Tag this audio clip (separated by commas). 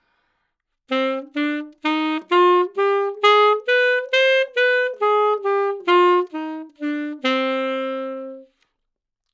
woodwind instrument, Musical instrument, Music